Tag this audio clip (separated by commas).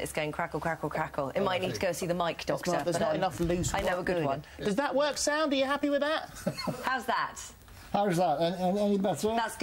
Speech